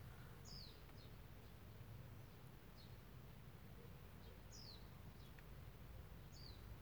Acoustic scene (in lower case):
park